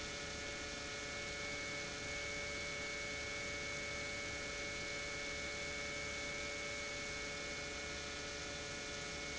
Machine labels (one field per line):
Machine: pump